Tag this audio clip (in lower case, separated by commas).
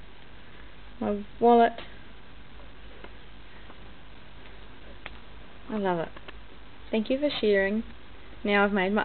speech